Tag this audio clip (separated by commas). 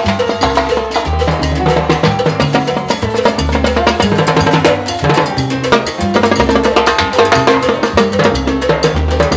playing timbales